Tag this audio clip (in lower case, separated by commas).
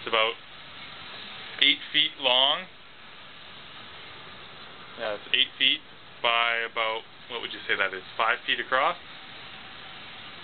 speech